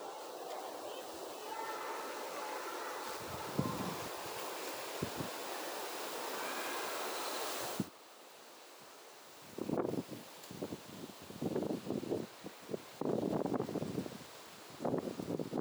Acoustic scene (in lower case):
residential area